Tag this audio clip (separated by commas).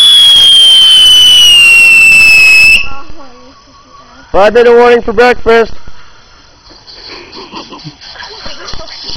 Speech